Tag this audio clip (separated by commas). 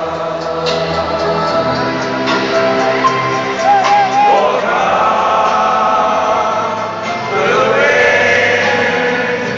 Music